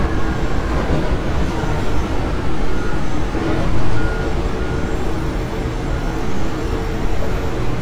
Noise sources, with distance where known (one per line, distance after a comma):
unidentified impact machinery
reverse beeper